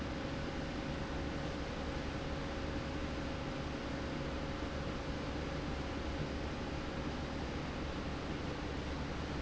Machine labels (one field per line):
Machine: slide rail